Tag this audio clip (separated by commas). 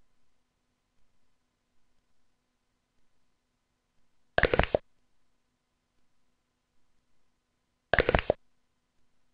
Silence